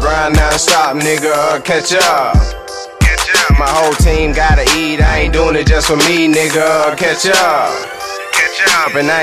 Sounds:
rhythm and blues, music

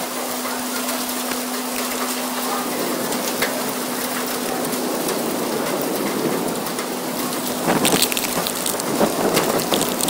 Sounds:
wind

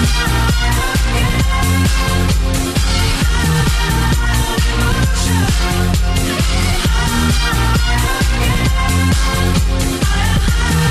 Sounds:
electronic dance music, singing

